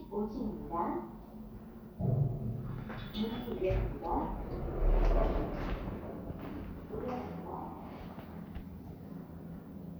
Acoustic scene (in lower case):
elevator